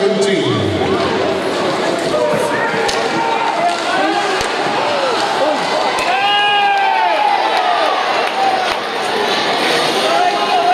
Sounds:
inside a public space, Speech

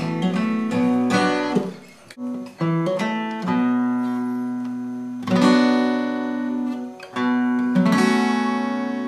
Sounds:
Musical instrument, Music, Guitar, Plucked string instrument

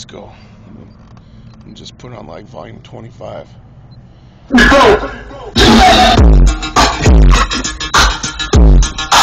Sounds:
Speech, Music

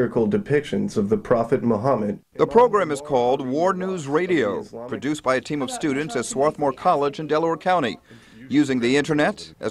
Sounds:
Speech

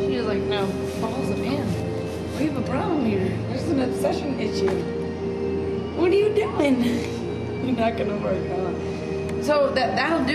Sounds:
Female speech, Speech, Music

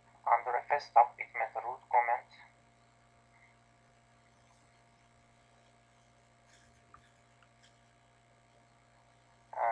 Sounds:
Speech

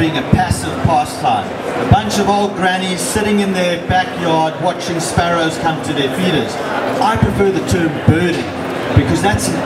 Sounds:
Speech

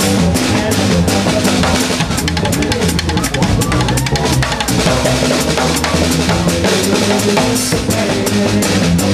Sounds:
Music

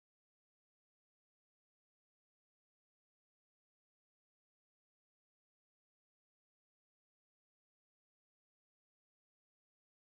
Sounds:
Crowd

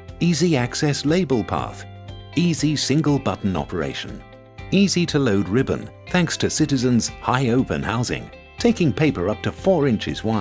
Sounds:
Music, Speech

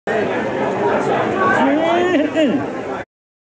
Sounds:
Speech

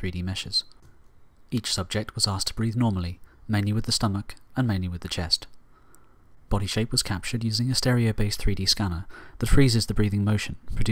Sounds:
Speech

